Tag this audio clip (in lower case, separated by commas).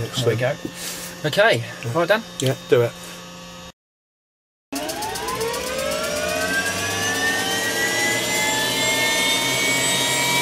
idling, engine, speech, engine starting